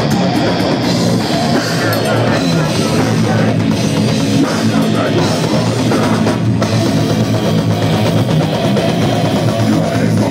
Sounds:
exciting music, music

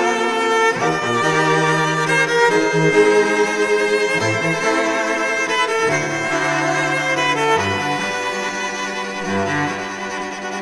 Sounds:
cello, double bass, bowed string instrument

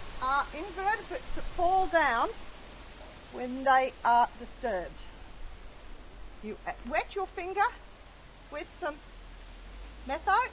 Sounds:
speech

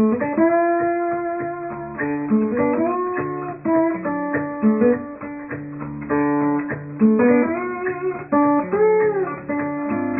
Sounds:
slide guitar

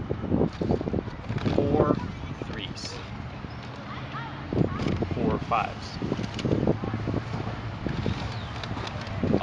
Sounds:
outside, urban or man-made, speech

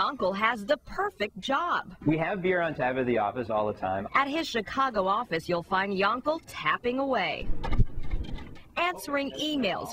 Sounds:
speech, tap

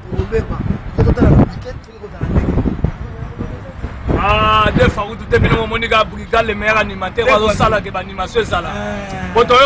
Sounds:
speech

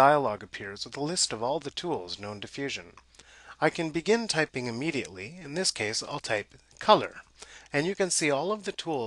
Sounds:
speech

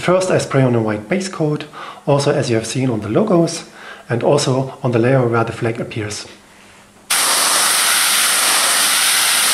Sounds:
speech, spray

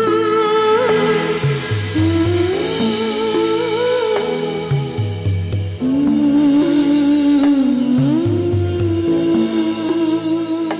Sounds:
music of bollywood, music

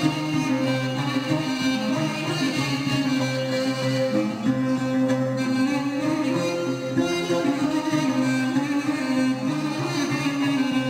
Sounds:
music, musical instrument

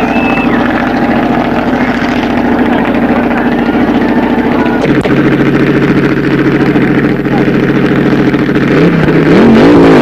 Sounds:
speech, auto racing, vehicle

